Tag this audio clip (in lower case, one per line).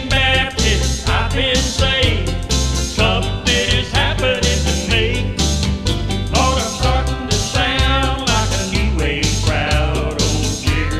music
happy music